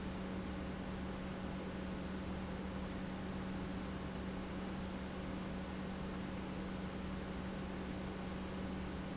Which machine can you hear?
pump